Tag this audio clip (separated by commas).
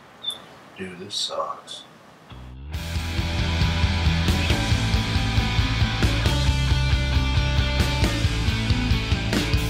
Music, Speech